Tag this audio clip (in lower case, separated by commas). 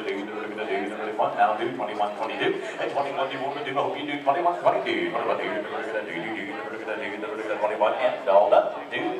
speech